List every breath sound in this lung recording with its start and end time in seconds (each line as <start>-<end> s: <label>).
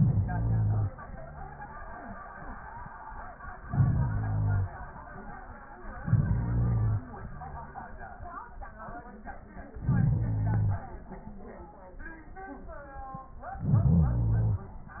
0.00-0.97 s: inhalation
3.66-4.83 s: inhalation
5.96-7.13 s: inhalation
9.76-10.94 s: inhalation
13.36-14.75 s: inhalation